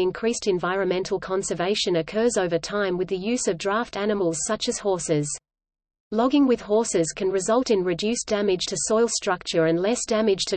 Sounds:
horse neighing

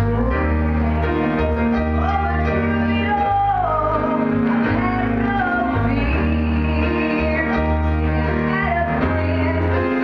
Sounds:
female singing, music

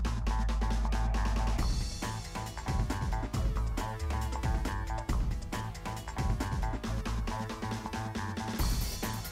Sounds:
music

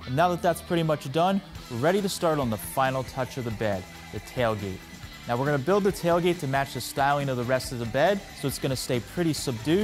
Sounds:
speech, music

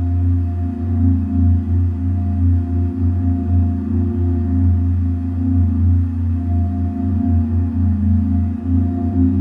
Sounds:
musical instrument, singing bowl, music

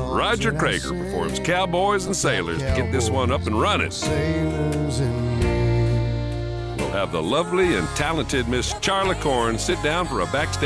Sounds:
speech, music

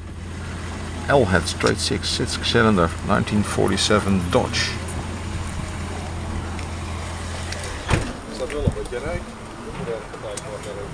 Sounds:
vehicle, truck, speech

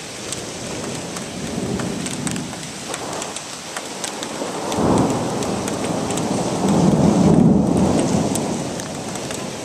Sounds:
thunderstorm, rain, thunder, rain on surface, raindrop

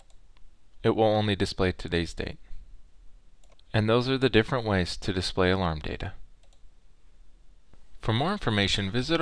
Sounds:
speech

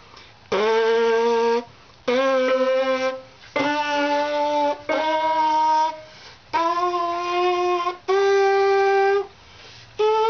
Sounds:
music, musical instrument

